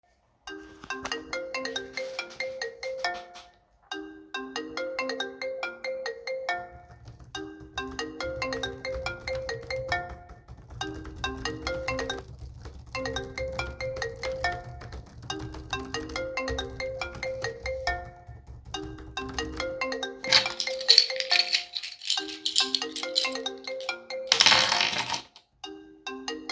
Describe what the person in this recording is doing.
A phone is ringing while keyboard typing sounds can be heard. At the end, a keychain is picked up and put back in place.